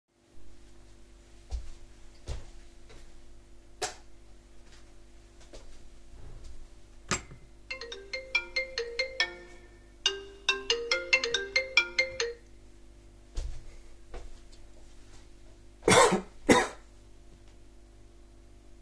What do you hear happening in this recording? picking the dished, putting it in its place, the phone start ringing, I cough